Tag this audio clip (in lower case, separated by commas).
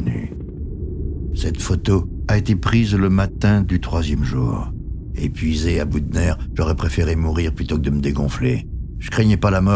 speech